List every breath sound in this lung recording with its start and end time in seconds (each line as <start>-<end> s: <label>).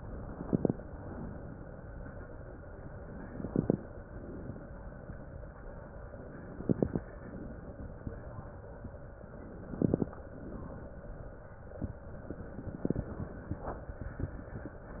0.00-0.80 s: inhalation
0.00-0.80 s: crackles
0.87-1.65 s: exhalation
3.05-3.85 s: inhalation
3.05-3.85 s: crackles
4.02-4.80 s: exhalation
6.28-7.08 s: inhalation
6.28-7.08 s: crackles
7.19-7.97 s: exhalation
9.37-10.17 s: inhalation
9.37-10.17 s: crackles
10.26-10.93 s: exhalation
12.41-13.21 s: inhalation
12.41-13.21 s: crackles